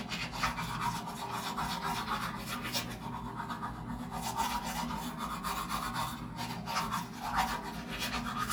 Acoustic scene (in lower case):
restroom